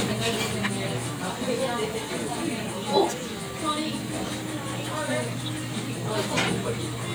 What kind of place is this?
crowded indoor space